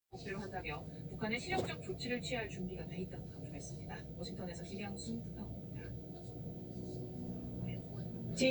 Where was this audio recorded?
in a car